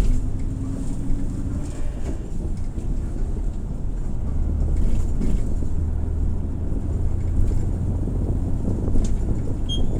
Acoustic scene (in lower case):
bus